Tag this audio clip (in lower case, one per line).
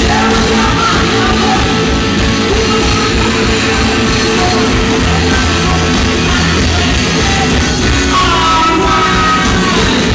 inside a large room or hall
music